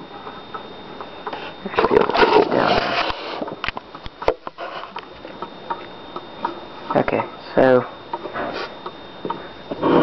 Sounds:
Speech

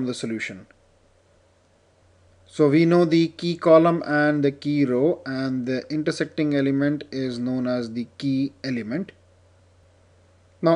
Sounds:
monologue, Speech

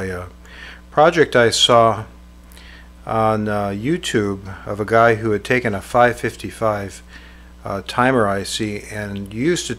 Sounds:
Speech

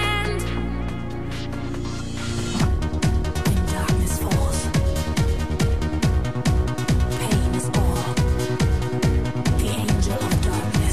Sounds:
Music

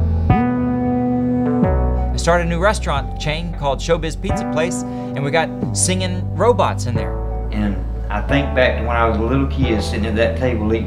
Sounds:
Music, Speech

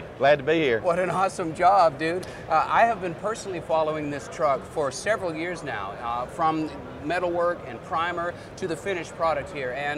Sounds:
Speech

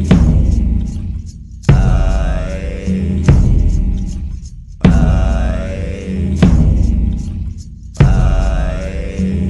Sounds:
Music, Mantra

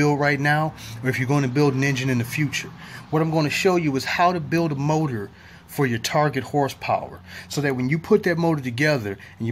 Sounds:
Speech

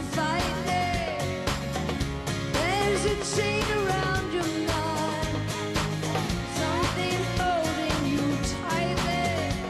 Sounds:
Music

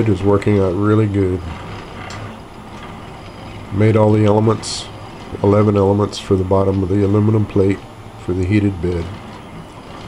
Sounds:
Speech, Printer

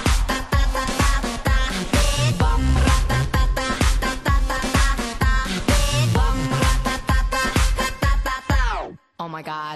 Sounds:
Music, Speech

